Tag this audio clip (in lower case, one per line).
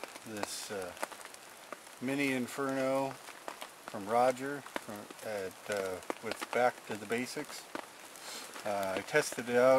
rain on surface
raindrop
speech